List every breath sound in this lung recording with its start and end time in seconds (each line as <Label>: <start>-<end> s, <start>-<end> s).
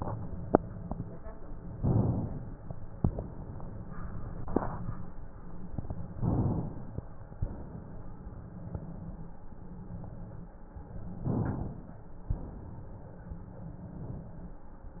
Inhalation: 1.73-2.99 s, 6.11-7.37 s, 11.21-12.29 s
Exhalation: 2.99-5.04 s, 7.40-9.44 s, 12.29-14.51 s